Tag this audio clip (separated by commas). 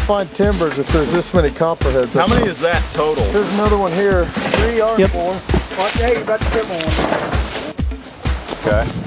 Speech, Music, outside, rural or natural